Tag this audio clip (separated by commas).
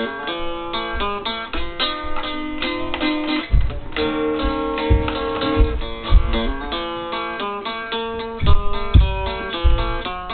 Musical instrument, Strum, Guitar, Plucked string instrument, Music